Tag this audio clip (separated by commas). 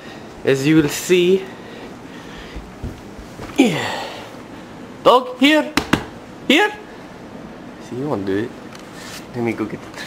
Speech